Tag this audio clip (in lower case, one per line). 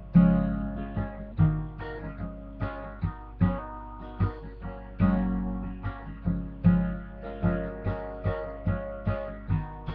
guitar
strum
acoustic guitar
music
plucked string instrument
musical instrument